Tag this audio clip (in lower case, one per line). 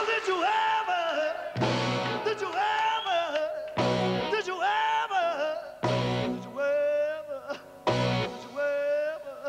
music
blues